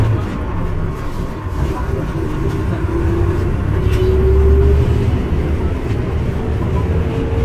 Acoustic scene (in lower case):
bus